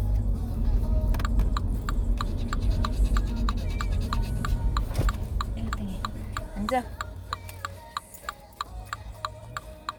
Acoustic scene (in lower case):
car